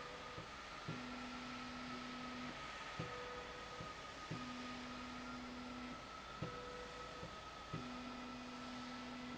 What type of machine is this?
slide rail